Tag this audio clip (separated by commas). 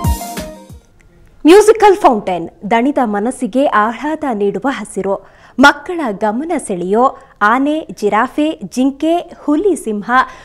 Speech, Music